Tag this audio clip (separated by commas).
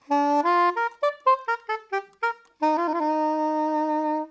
Music, Wind instrument, Musical instrument